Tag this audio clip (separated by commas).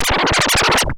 Musical instrument, Music, Scratching (performance technique)